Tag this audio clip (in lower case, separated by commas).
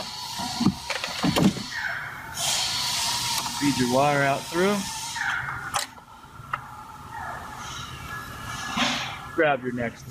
door, vehicle, speech, outside, urban or man-made